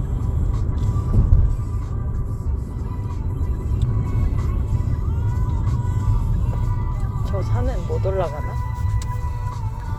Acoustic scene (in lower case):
car